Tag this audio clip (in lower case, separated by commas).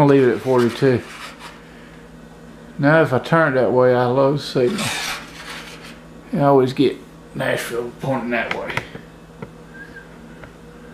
speech, inside a small room